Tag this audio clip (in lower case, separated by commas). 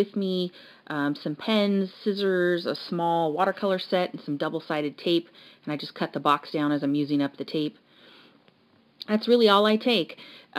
speech, inside a small room